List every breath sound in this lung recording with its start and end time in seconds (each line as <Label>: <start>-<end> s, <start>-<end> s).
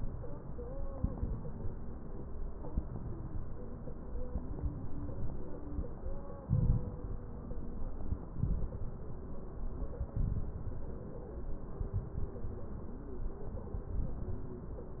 Inhalation: 0.95-1.61 s, 2.68-3.34 s, 4.18-4.84 s, 6.48-7.14 s, 8.38-9.04 s, 10.16-10.83 s, 11.82-12.48 s, 13.91-14.57 s
Crackles: 0.95-1.61 s, 2.68-3.34 s, 4.18-4.84 s, 6.48-7.14 s, 8.38-9.04 s, 10.16-10.83 s, 11.82-12.48 s, 13.91-14.57 s